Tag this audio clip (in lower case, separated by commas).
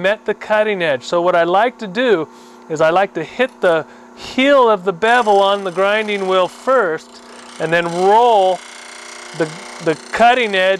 speech, tools